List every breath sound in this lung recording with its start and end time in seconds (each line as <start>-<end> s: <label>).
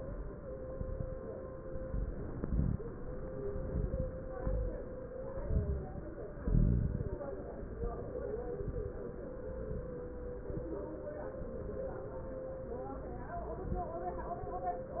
0.70-1.16 s: inhalation
0.70-1.16 s: crackles
1.73-2.18 s: exhalation
1.73-2.18 s: crackles
2.34-2.79 s: inhalation
2.34-2.79 s: crackles
3.44-4.16 s: exhalation
3.44-4.16 s: crackles
4.37-4.94 s: inhalation
4.37-4.94 s: crackles
5.26-6.08 s: exhalation
5.26-6.08 s: crackles
6.40-7.22 s: inhalation
6.40-7.22 s: crackles
7.75-8.21 s: exhalation
7.75-8.21 s: crackles
8.63-9.08 s: inhalation
8.63-9.08 s: crackles
9.71-10.16 s: exhalation
9.71-10.16 s: crackles
10.45-10.94 s: inhalation
10.45-10.94 s: crackles